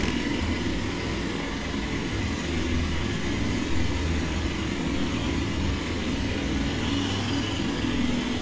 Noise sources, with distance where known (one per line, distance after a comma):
jackhammer